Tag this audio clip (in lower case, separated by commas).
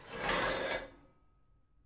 dishes, pots and pans, home sounds